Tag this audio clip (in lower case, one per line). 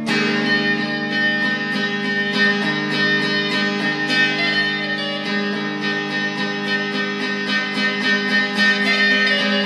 guitar
musical instrument
plucked string instrument
music
electric guitar